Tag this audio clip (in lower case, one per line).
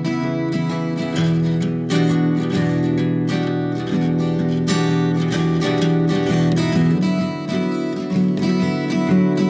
music